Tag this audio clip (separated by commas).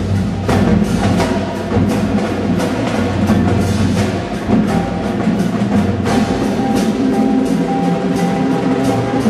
Music, Percussion